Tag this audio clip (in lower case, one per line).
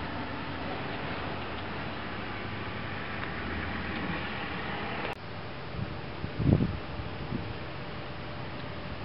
outside, urban or man-made
vehicle